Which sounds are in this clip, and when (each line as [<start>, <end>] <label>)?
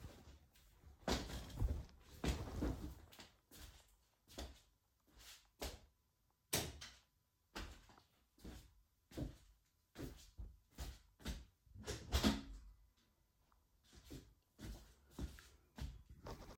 [3.13, 6.23] footsteps
[6.36, 6.87] light switch
[7.16, 11.59] footsteps
[11.79, 12.47] window
[13.93, 16.08] footsteps